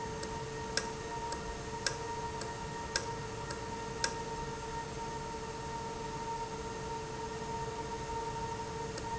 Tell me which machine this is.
valve